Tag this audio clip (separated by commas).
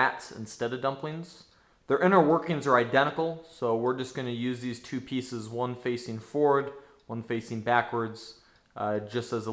Speech